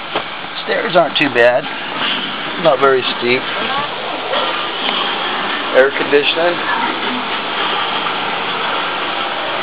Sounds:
speech

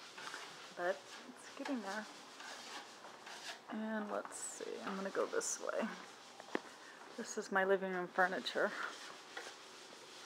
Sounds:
speech

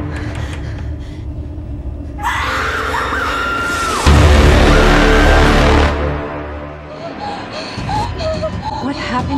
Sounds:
music, speech

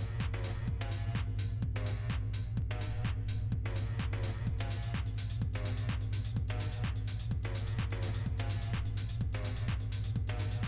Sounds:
background music, music, exciting music

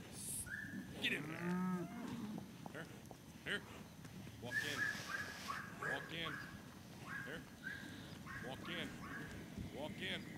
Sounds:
livestock, bovinae

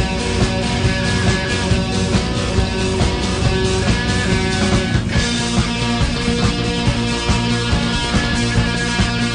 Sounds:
music, psychedelic rock

